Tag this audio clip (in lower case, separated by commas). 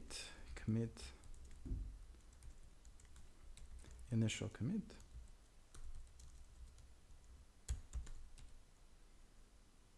computer keyboard, speech